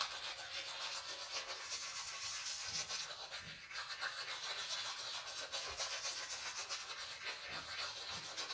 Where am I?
in a restroom